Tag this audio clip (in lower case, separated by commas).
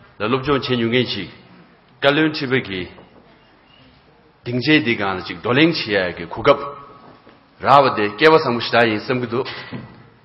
speech, male speech